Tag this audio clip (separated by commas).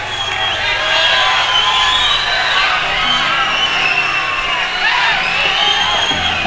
Crowd, Human group actions